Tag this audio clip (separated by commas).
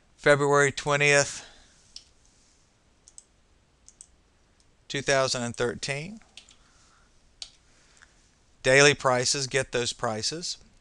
Speech